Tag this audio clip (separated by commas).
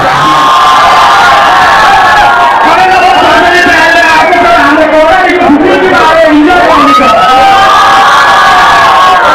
Cheering, people crowd, Crowd